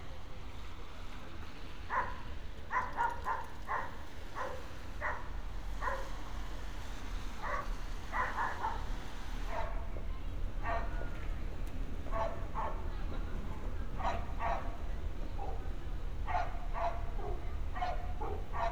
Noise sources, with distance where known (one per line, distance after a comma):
dog barking or whining, near